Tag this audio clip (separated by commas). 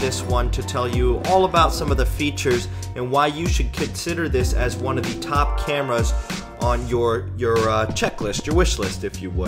Speech, Music